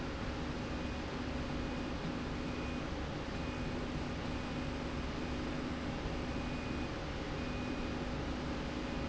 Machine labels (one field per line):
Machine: slide rail